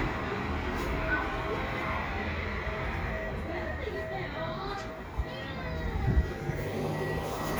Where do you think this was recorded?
in a residential area